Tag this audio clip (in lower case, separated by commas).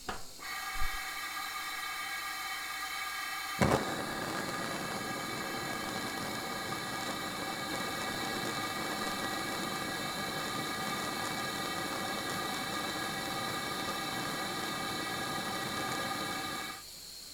fire, hiss